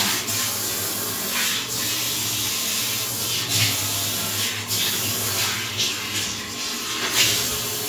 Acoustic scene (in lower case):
restroom